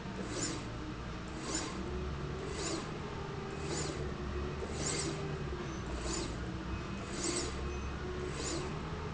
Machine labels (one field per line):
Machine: slide rail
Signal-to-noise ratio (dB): -6 dB